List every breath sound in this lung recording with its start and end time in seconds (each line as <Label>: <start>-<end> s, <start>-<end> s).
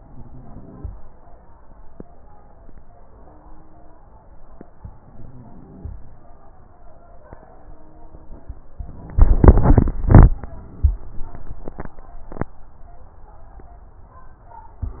Inhalation: 0.00-0.85 s, 4.81-5.93 s
Crackles: 0.00-0.85 s, 4.81-5.93 s